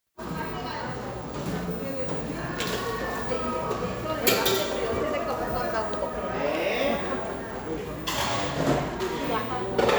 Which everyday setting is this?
cafe